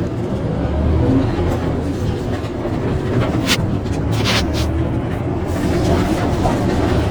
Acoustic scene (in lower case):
bus